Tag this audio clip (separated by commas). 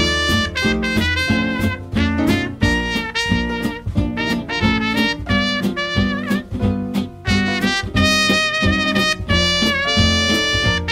Music